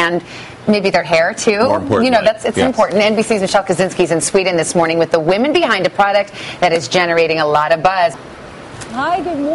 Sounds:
Speech

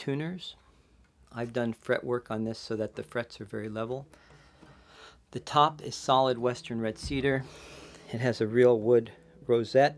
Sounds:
Speech

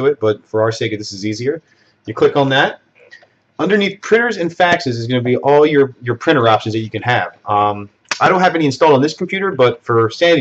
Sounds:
Speech

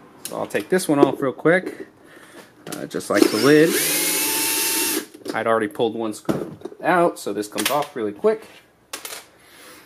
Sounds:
Speech

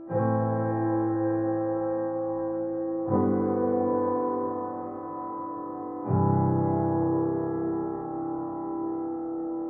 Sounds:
Music

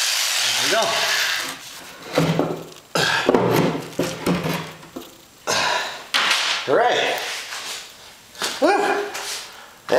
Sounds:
Speech, Wood

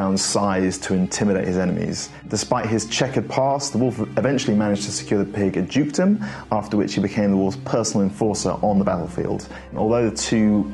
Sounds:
Speech, Music

